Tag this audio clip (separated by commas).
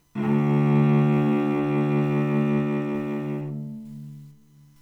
Musical instrument, Music, Bowed string instrument